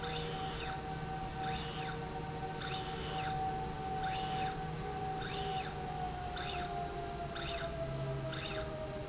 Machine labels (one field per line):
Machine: slide rail